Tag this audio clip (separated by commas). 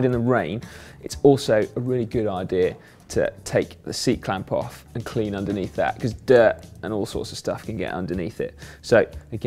Speech, Music